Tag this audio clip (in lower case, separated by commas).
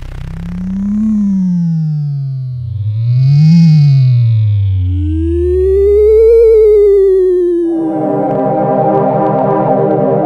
musical instrument, synthesizer, keyboard (musical), music